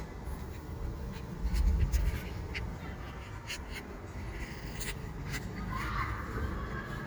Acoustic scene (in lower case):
residential area